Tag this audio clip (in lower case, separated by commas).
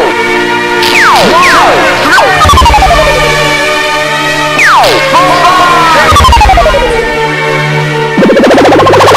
music